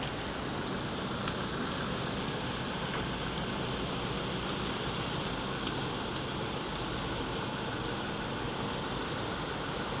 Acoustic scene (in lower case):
street